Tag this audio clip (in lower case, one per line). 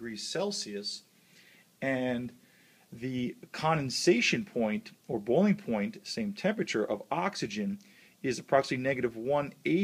speech